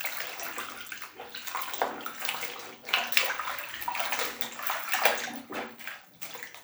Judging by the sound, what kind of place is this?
restroom